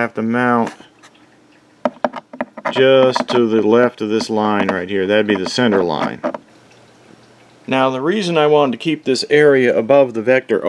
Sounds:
Speech, inside a small room

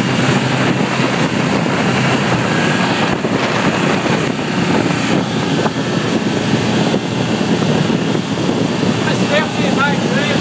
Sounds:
Speech

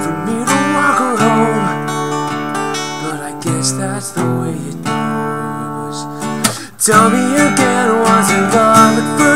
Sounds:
Music

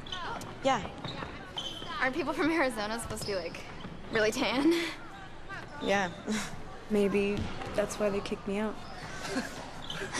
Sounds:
playing volleyball

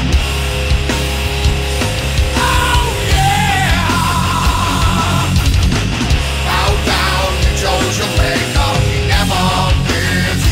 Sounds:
Punk rock, Music

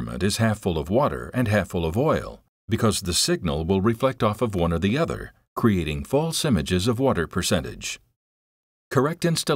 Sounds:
Speech

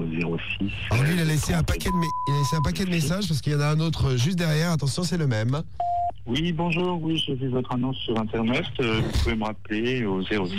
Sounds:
Radio, Speech

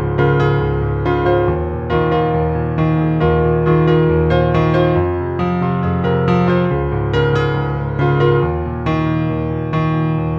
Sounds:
Music

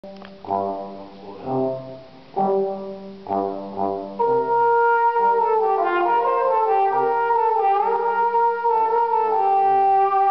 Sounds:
playing trombone

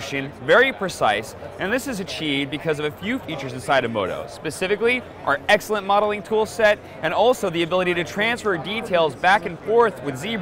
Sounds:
Speech

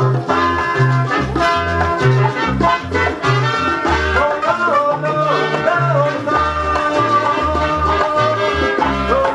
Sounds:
Music

